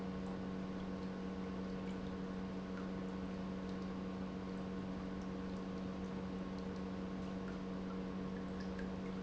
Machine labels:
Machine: pump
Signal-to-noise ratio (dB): 6 dB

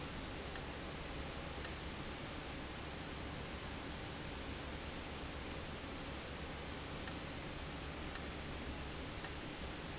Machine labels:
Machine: valve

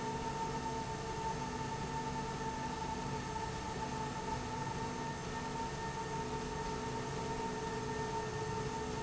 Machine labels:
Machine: slide rail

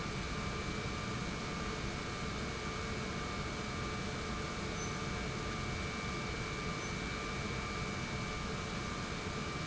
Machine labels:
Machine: pump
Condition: normal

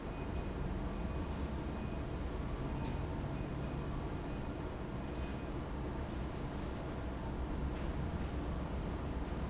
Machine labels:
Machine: fan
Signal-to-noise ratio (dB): -6 dB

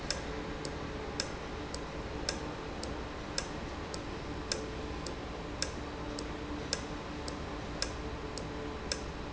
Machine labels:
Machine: valve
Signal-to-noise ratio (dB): -6 dB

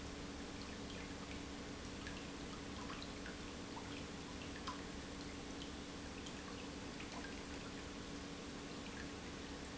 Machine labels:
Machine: pump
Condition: normal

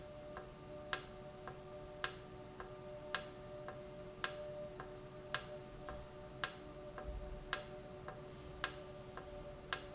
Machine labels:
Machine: valve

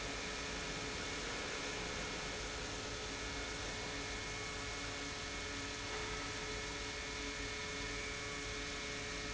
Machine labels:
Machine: pump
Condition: normal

